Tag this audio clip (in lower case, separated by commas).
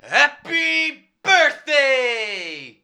shout, yell, speech, human voice, male speech